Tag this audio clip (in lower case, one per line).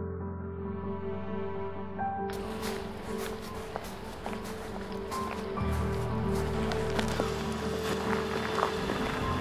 music